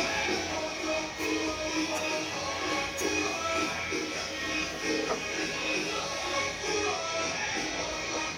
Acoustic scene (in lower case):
restaurant